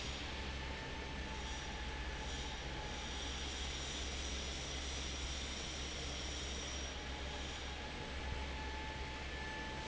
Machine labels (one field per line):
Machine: fan